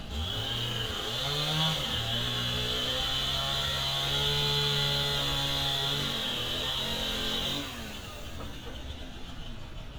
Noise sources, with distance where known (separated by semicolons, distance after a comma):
chainsaw, near